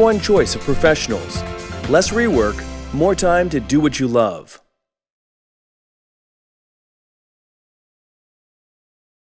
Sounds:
speech
music

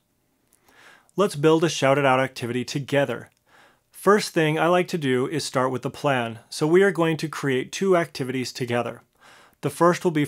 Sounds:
speech

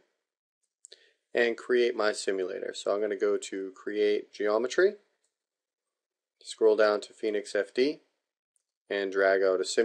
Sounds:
speech

